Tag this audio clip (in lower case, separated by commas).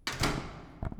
home sounds, door, slam